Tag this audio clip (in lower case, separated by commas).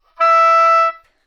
music, musical instrument, woodwind instrument